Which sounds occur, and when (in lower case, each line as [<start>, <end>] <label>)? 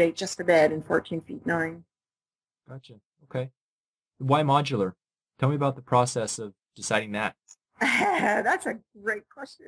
[0.00, 1.82] conversation
[0.00, 1.84] female speech
[2.61, 2.99] man speaking
[2.63, 2.98] conversation
[3.13, 3.51] conversation
[3.14, 3.49] man speaking
[4.11, 4.92] conversation
[4.13, 4.92] man speaking
[5.30, 6.52] conversation
[5.34, 6.52] man speaking
[6.70, 7.31] man speaking
[6.73, 7.34] conversation
[7.44, 7.52] tick
[7.68, 8.44] laughter
[7.71, 8.81] conversation
[8.40, 8.80] female speech
[8.91, 9.65] conversation
[8.92, 9.65] female speech